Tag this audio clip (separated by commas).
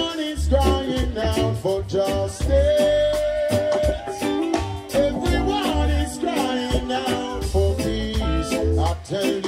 Music, Reggae, Singing